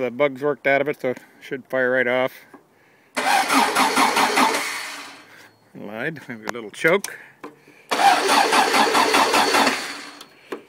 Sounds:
vehicle
speech
idling

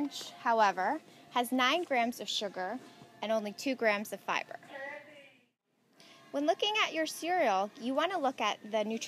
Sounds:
speech

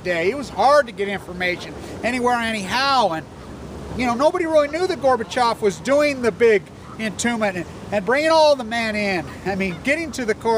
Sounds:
speech

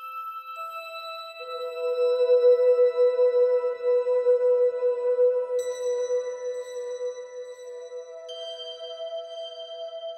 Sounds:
ambient music

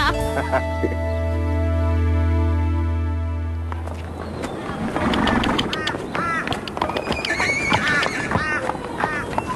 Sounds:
horse
quack

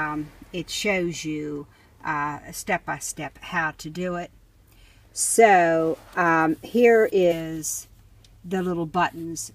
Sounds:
speech

